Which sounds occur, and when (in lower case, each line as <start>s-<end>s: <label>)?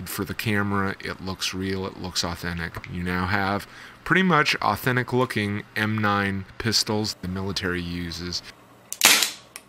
0.0s-3.7s: man speaking
0.0s-9.6s: mechanisms
2.8s-2.9s: tick
3.7s-3.9s: breathing
4.0s-5.6s: man speaking
5.7s-6.4s: man speaking
5.9s-6.0s: tick
6.6s-7.1s: man speaking
7.2s-8.5s: man speaking
8.9s-9.0s: tick
9.0s-9.4s: cap gun
9.2s-9.3s: tick
9.5s-9.6s: tick